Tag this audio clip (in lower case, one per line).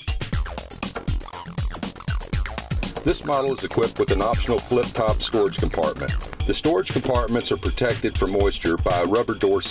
music
speech